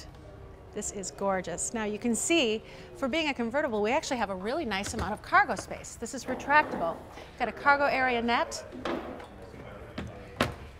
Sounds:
Speech

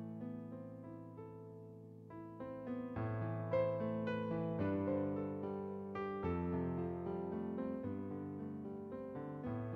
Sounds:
Music

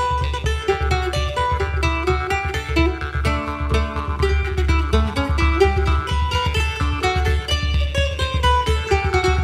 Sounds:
Plucked string instrument, Music, Guitar, Musical instrument

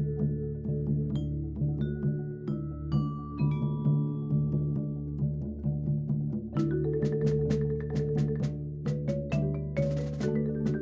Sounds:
Wood block, Percussion, Music

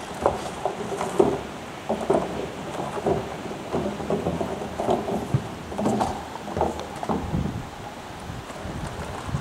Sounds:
Animal, Clip-clop, Horse

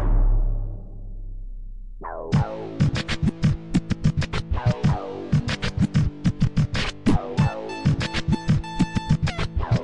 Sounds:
Music

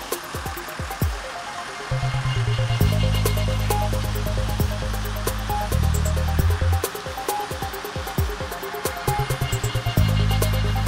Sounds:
Music

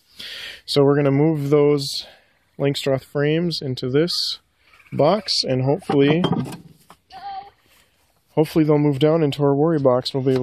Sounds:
Animal, Speech

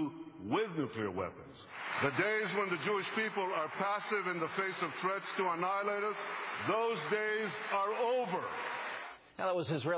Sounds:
Narration, Speech, Male speech

